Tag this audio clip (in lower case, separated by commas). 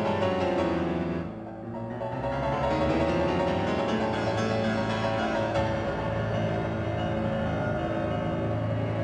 music